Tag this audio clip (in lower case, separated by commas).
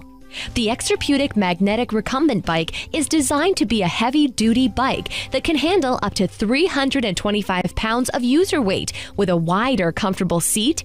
music, speech